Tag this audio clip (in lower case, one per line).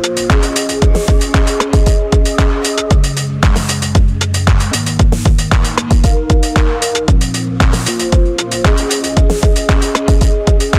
electronica